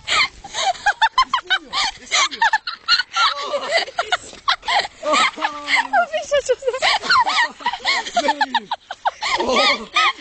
Young girls giggle and speak